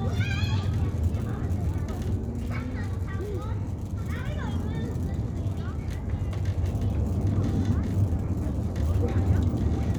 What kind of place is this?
residential area